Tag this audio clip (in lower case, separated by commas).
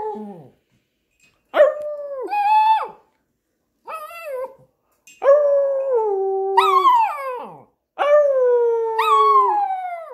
dog howling